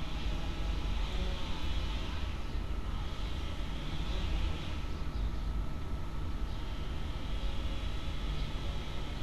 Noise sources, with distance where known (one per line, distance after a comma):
unidentified powered saw